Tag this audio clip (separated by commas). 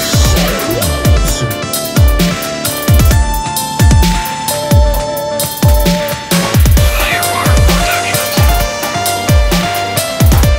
Electronica, Music